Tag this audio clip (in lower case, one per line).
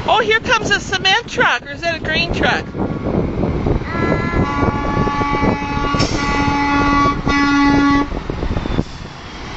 vehicle
speech